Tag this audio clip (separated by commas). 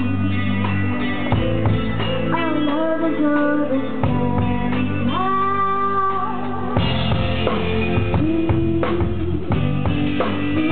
Music, Independent music